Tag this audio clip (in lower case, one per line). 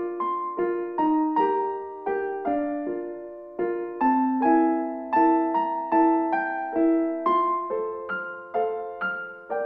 music